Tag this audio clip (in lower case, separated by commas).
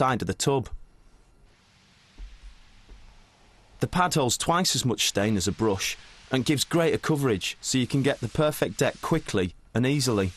speech